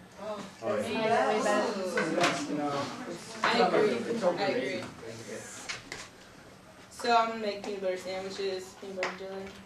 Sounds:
woman speaking, speech, conversation, male speech

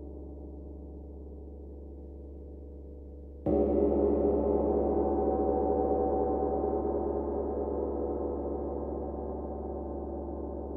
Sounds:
gong

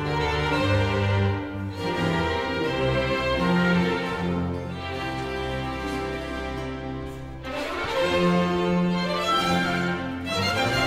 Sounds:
music, orchestra, tender music

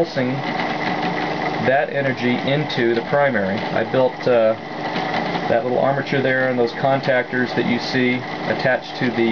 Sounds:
speech, inside a large room or hall

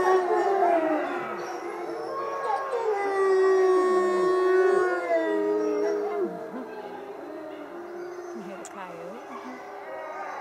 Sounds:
speech, howl, animal

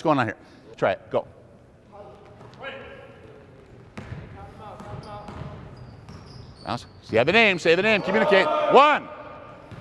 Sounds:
basketball bounce, speech

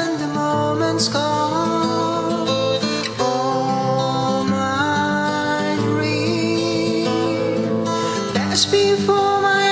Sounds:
music

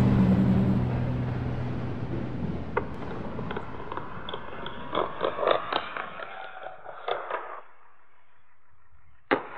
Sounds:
skateboarding

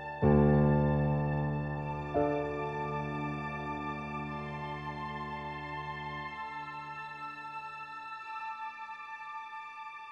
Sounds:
music, background music

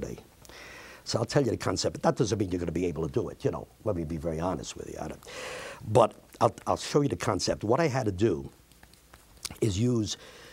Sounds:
speech

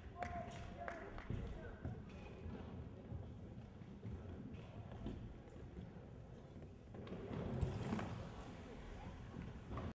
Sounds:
speech

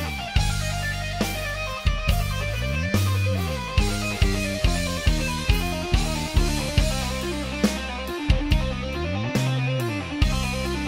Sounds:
tapping guitar

